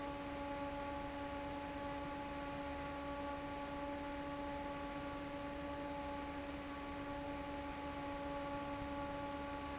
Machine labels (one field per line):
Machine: fan